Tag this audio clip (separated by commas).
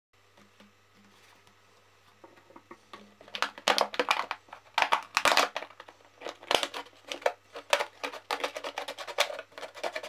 plastic bottle crushing